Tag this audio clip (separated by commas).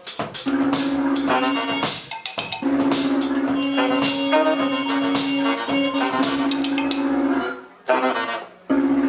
Music, Drum, inside a large room or hall, Musical instrument, Drum kit